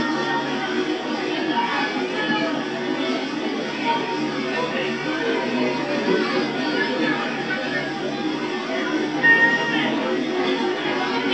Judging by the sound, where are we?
in a park